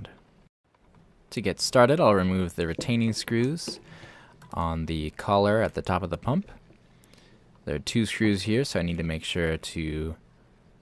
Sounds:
Speech

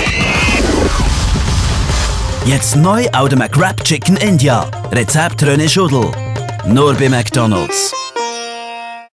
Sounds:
Speech, Music

